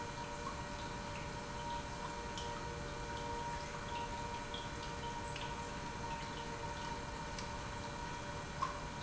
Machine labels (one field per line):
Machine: pump